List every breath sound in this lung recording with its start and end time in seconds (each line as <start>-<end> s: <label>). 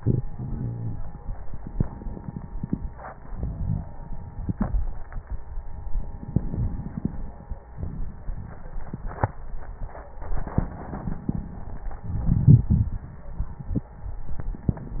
1.46-2.49 s: inhalation
3.26-3.86 s: exhalation
3.26-3.86 s: crackles
6.25-7.59 s: crackles
6.27-7.63 s: inhalation
7.70-9.05 s: exhalation
10.37-11.71 s: inhalation
10.37-11.71 s: crackles
12.08-13.14 s: exhalation
12.08-13.14 s: crackles